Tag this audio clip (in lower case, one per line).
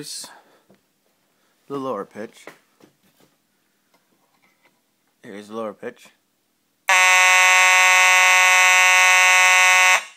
speech